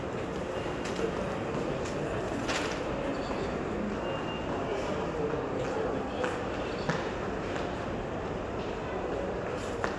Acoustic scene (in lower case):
crowded indoor space